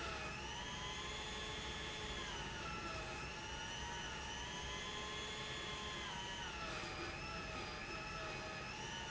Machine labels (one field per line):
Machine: pump